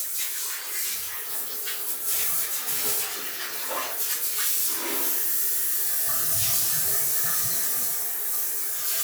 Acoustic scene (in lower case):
restroom